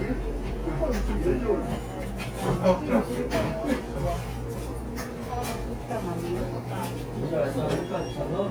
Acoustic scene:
cafe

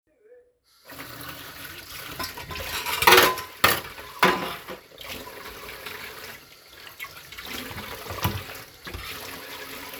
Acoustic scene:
kitchen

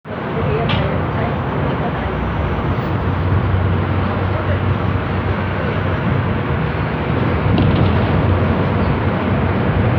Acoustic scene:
bus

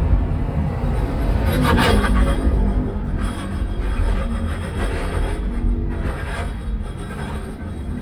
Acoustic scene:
car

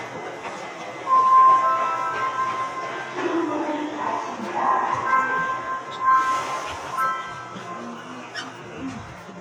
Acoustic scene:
subway station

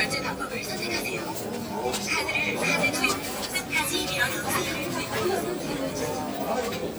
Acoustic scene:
crowded indoor space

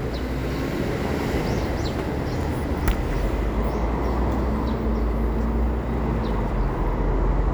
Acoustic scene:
residential area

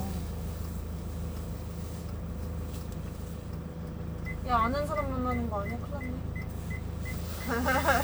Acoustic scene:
car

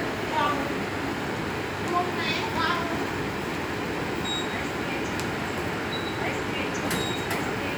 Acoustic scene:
subway station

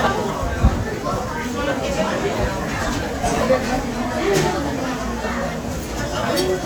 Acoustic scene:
restaurant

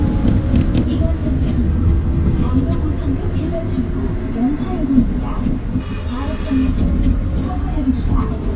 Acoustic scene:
bus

